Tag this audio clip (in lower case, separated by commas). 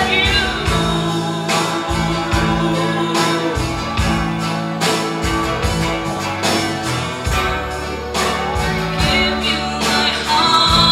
female singing, music